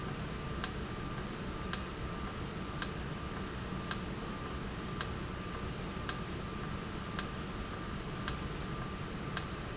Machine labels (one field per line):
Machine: valve